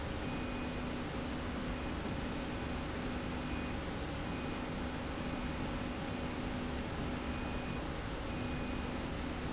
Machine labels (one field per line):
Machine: slide rail